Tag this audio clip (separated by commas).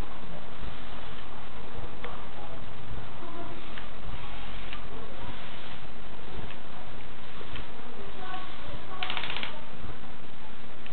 Speech